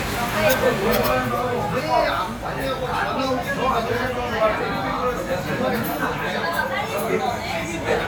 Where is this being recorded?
in a crowded indoor space